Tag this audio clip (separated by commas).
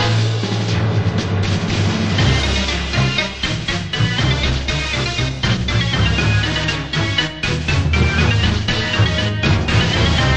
Music